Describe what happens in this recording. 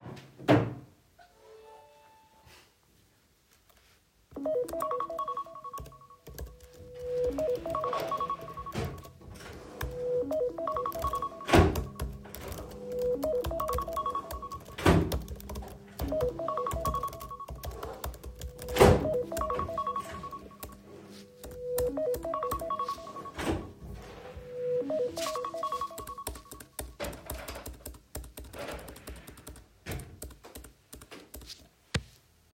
The phone starts to ring. I type on the keyboard. Another person in the room open and closes a drawer.